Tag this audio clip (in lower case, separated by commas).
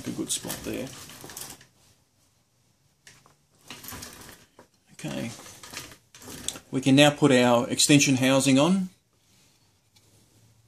inside a large room or hall, speech